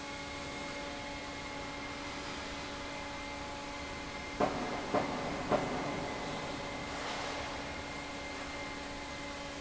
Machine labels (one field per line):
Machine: fan